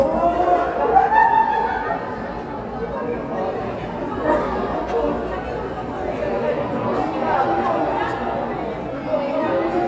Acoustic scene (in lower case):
cafe